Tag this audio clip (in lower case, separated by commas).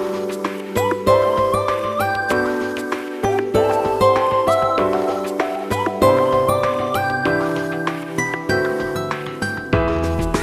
music